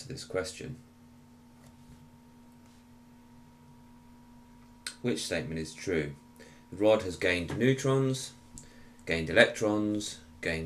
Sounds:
speech

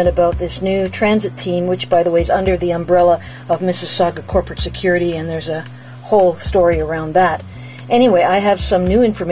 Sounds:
music
speech

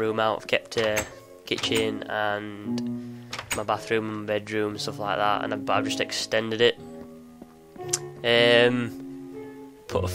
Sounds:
speech
music

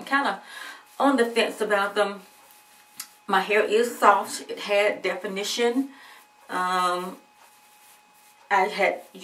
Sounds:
speech

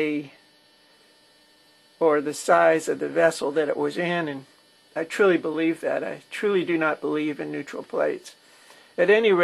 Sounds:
speech

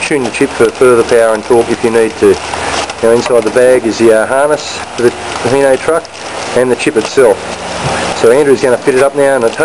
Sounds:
speech

